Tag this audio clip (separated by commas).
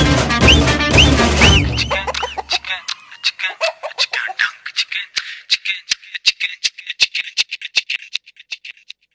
Music